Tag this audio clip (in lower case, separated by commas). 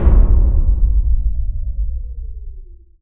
explosion, boom